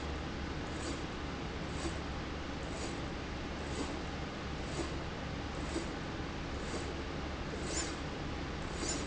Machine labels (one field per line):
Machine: slide rail